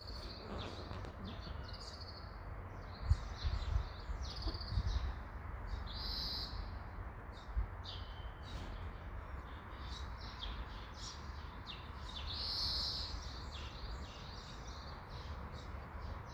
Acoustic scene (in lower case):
park